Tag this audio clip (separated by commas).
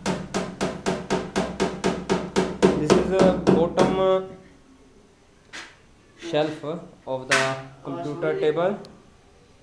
inside a small room, Speech